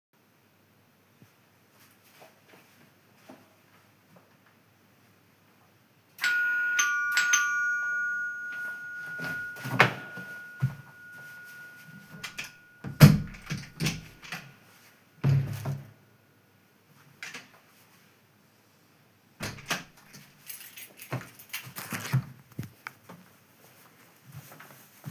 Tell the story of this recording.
The doorbell rings and I walk to the door. I open the door and close it again afterwards.